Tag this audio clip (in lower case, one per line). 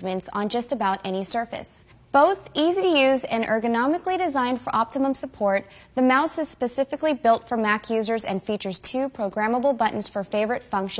speech